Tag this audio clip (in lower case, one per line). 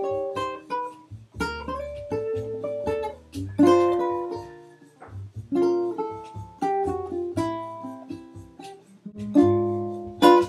musical instrument
plucked string instrument
music
ukulele